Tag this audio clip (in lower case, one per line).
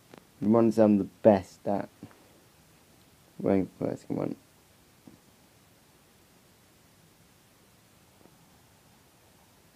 speech